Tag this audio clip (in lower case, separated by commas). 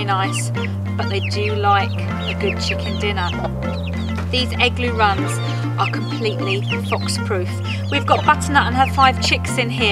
speech, music